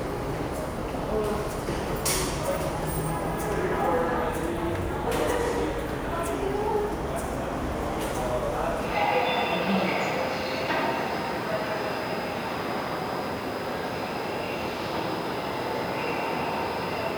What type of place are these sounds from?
subway station